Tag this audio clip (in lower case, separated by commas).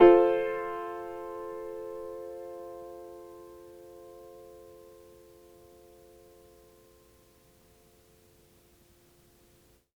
musical instrument, piano, keyboard (musical), music